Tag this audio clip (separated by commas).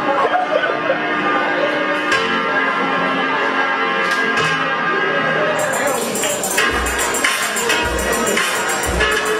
Music, Pop music, Dance music, Soundtrack music